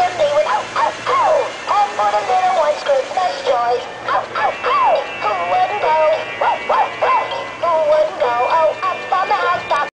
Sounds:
music
bow-wow

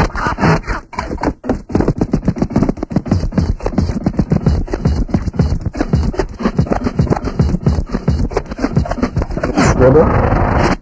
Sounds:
music
speech
scratching (performance technique)

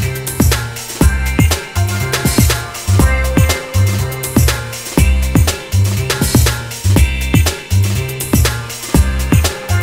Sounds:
music

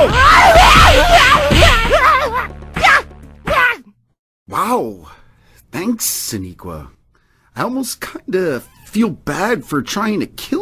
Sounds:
music
speech

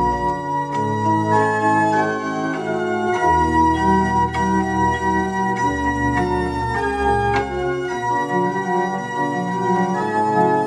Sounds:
playing electronic organ
music
electronic organ

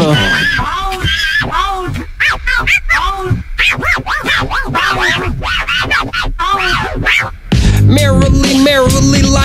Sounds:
music

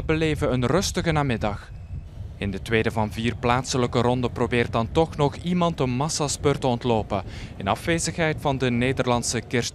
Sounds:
speech
vehicle

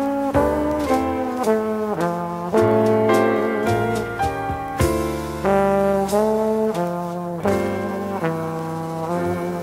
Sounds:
playing trombone

